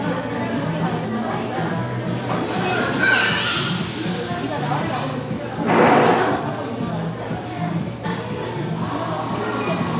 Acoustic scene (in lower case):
crowded indoor space